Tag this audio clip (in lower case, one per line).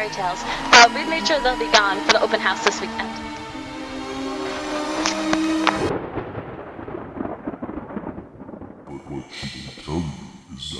speech
music